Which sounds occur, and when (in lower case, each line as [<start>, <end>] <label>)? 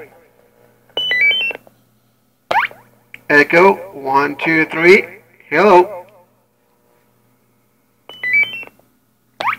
[0.00, 0.31] man speaking
[0.00, 9.55] mechanisms
[0.31, 0.43] tick
[0.94, 1.58] brief tone
[1.62, 1.71] tick
[2.49, 2.79] sound effect
[3.10, 3.21] tick
[3.28, 3.74] man speaking
[3.73, 4.02] echo
[4.03, 5.03] man speaking
[4.94, 5.41] echo
[5.48, 5.86] man speaking
[5.76, 6.25] echo
[6.01, 6.11] tick
[6.62, 6.72] tick
[8.03, 8.72] brief tone
[9.37, 9.55] sound effect